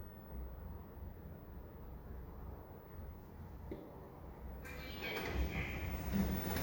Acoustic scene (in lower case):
elevator